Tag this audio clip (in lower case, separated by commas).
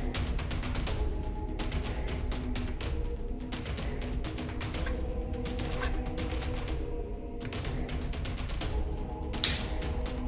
cap gun shooting